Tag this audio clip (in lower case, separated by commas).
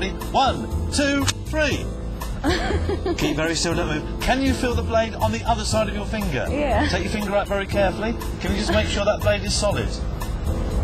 music, speech